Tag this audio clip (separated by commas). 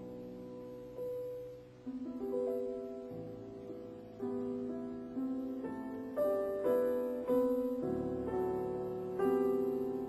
Music